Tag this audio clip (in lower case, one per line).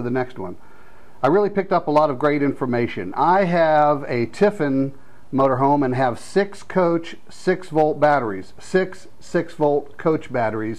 speech